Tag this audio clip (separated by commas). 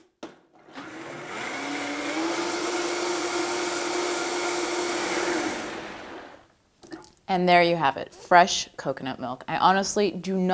Blender